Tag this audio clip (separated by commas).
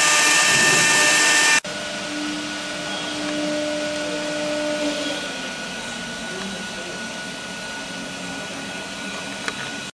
inside a large room or hall, Vacuum cleaner